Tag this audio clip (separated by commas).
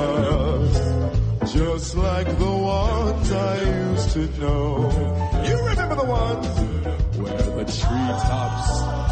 Choir, Male singing, Music